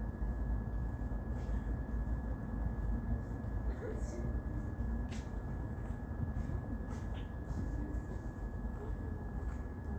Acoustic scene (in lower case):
park